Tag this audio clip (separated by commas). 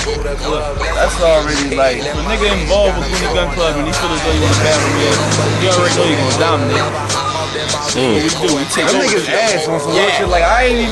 Music, Speech